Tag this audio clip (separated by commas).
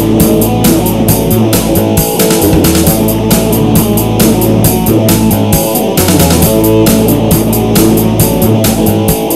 Musical instrument, Guitar, Music, Plucked string instrument, Strum